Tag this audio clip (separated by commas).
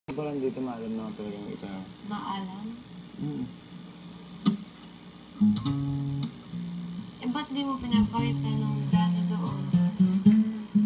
Plucked string instrument